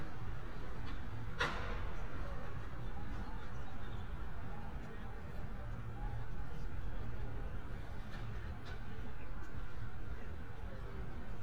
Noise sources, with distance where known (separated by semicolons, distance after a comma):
background noise